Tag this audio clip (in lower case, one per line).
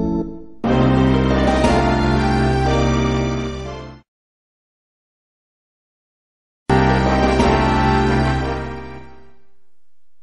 video game music